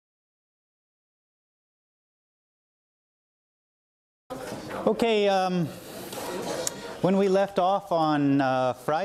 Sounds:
Speech

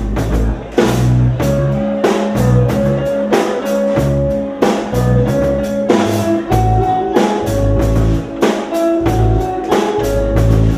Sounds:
Speech, Music

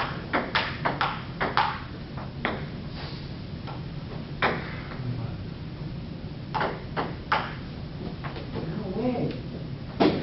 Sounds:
Speech

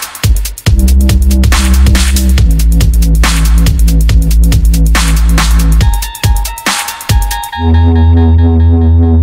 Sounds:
Drum and bass, Music, Dubstep, Electronic music

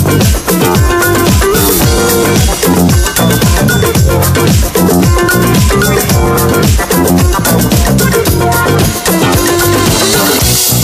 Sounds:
Funk, Disco, Music

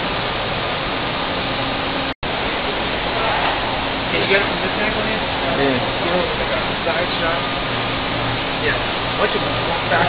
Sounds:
Heavy engine (low frequency), Speech

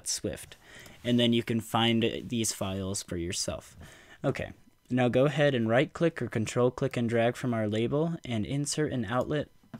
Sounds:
Speech

